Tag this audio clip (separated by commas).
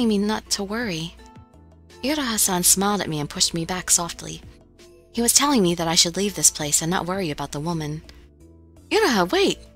Music, Speech, monologue